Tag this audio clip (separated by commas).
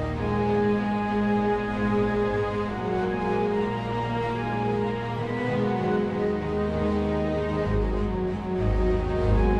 Music